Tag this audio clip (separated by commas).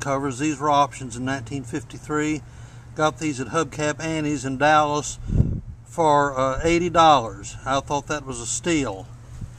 Speech